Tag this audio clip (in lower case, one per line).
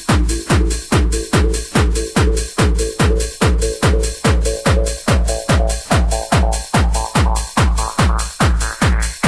music
electronic music
techno